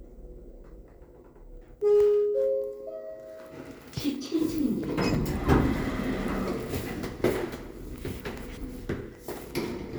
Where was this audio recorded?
in an elevator